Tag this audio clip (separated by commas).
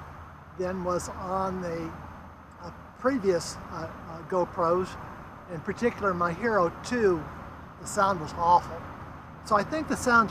Speech